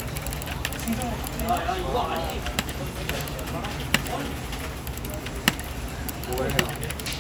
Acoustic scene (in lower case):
crowded indoor space